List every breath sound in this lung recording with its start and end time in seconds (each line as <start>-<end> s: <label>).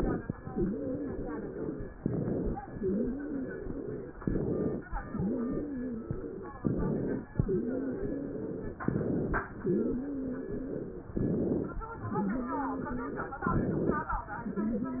0.42-1.90 s: exhalation
0.42-1.90 s: wheeze
1.96-2.56 s: inhalation
2.66-4.14 s: exhalation
2.66-4.14 s: wheeze
4.21-4.82 s: inhalation
5.01-6.57 s: exhalation
5.01-6.57 s: wheeze
6.66-7.27 s: inhalation
7.34-8.80 s: exhalation
7.34-8.80 s: wheeze
8.88-9.49 s: inhalation
9.60-11.14 s: exhalation
9.60-11.14 s: wheeze
11.16-11.77 s: inhalation
11.92-13.45 s: exhalation
11.92-13.45 s: wheeze
13.49-14.10 s: inhalation
14.40-15.00 s: wheeze